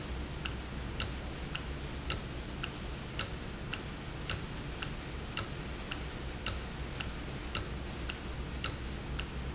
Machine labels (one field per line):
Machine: valve